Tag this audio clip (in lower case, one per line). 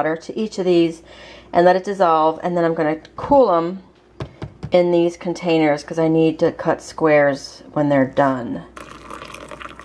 speech